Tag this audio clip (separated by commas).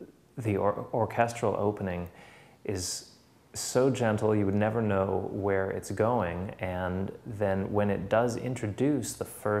Speech